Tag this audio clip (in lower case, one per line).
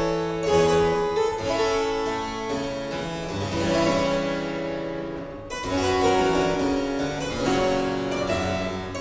harpsichord
music